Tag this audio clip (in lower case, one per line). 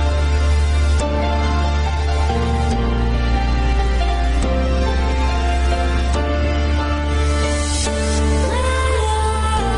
music